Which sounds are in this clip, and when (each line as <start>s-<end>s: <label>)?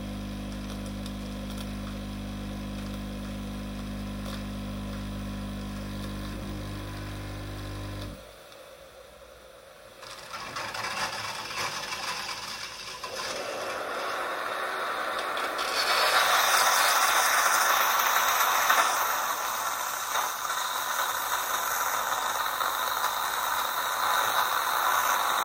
0.0s-8.9s: coffee machine
9.9s-25.4s: coffee machine